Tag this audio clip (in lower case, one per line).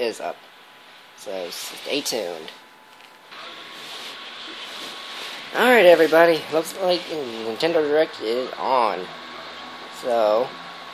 speech